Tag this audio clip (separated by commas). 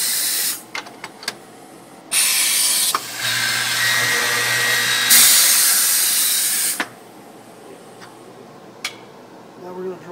Speech